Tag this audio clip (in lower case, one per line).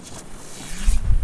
explosion
fireworks